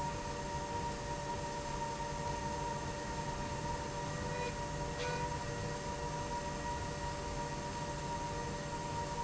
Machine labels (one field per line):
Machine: slide rail